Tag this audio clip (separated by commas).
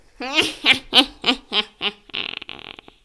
Human voice, Laughter